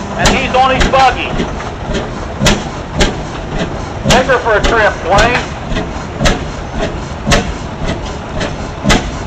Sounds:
Speech, Vehicle

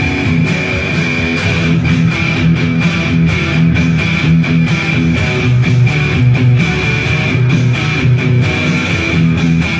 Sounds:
Musical instrument, Electric guitar, Plucked string instrument, Music, Acoustic guitar

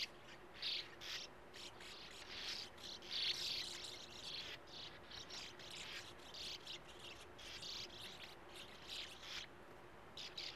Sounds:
barn swallow calling

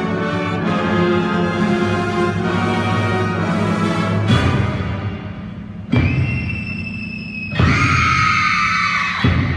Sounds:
Music

